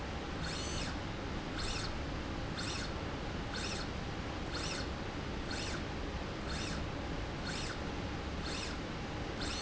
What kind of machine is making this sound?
slide rail